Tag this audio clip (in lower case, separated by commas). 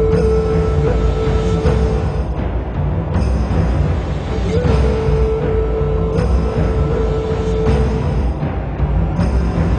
music